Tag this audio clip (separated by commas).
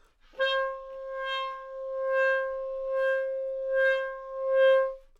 Musical instrument, woodwind instrument, Music